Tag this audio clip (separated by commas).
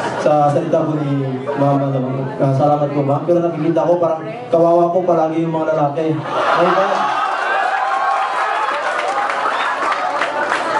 man speaking, Female speech, Speech, monologue